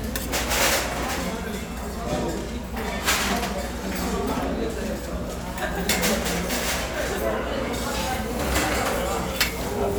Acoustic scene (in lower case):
restaurant